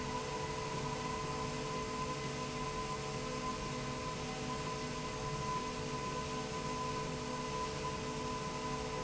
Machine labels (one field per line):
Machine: slide rail